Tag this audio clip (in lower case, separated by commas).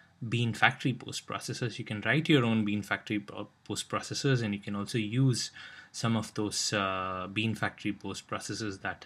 speech